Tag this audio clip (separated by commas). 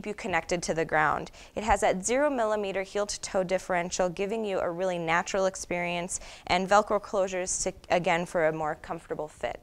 Speech